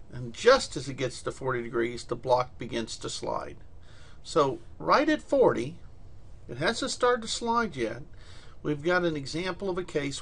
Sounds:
speech

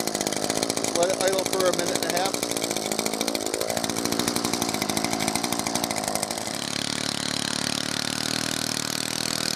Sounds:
hedge trimmer running

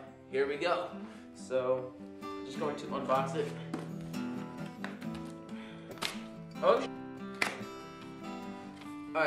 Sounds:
speech
music

